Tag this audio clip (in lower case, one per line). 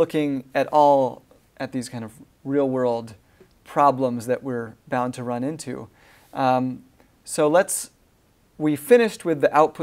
speech